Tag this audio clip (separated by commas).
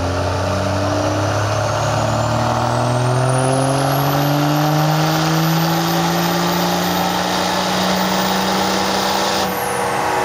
Vehicle, Truck, Medium engine (mid frequency)